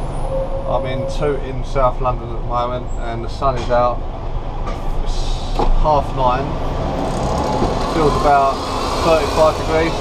A man is speaking and a vehicle engine revs up